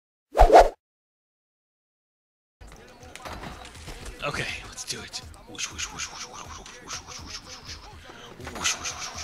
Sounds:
speech

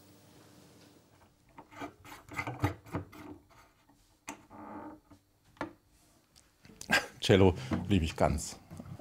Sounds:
speech

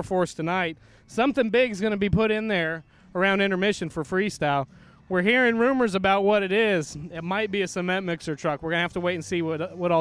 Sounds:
speech

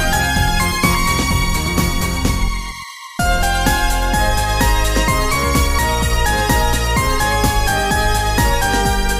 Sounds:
music

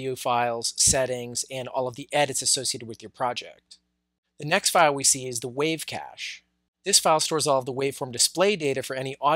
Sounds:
speech

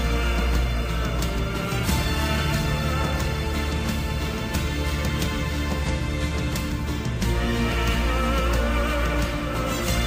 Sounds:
music

